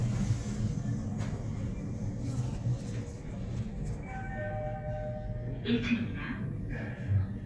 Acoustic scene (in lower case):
elevator